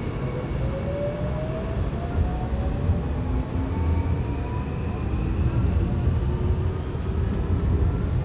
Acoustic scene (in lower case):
subway train